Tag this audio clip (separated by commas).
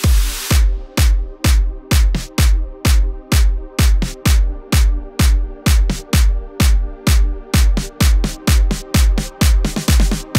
Music